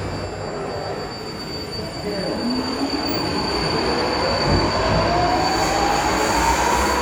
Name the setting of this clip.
subway station